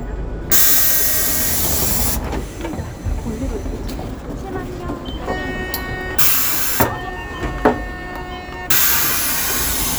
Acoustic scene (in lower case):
bus